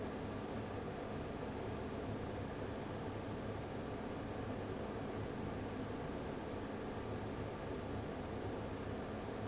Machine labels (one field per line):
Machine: fan